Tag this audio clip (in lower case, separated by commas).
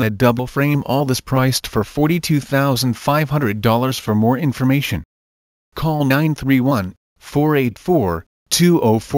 speech